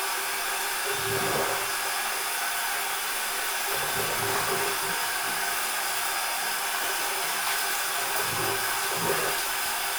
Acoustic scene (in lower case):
restroom